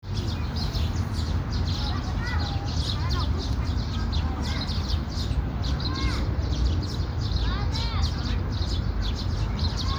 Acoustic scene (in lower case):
park